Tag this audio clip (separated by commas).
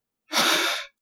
Breathing, Respiratory sounds